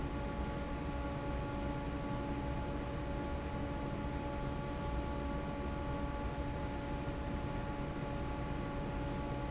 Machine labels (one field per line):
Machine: fan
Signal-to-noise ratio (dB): -6 dB